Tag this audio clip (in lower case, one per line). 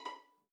music
musical instrument
bowed string instrument